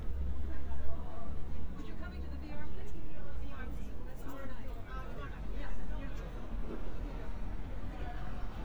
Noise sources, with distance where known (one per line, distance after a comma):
person or small group talking, near